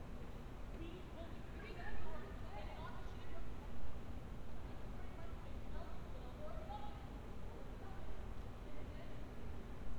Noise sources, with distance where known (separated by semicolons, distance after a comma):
unidentified human voice